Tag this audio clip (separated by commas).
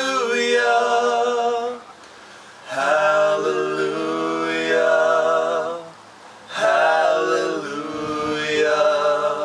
Music, A capella